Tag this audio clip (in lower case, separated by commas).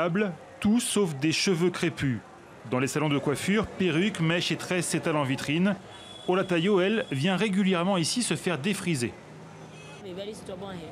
speech